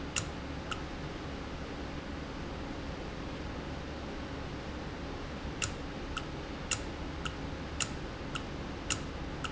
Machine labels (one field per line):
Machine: valve